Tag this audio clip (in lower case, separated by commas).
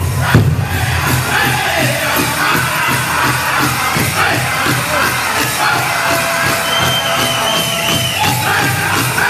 music